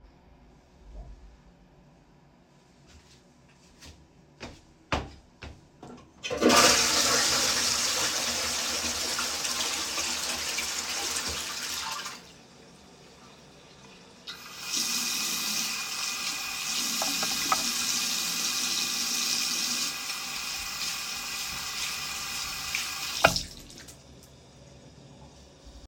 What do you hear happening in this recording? I was in the toilet and flushed the toilet. After that, I turned on the water to wash my hands. The door was also opened and closed during the recording.